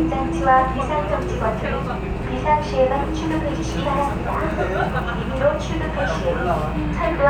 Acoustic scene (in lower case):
subway train